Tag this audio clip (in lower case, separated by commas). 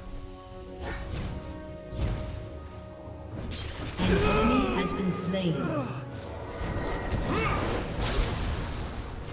speech, music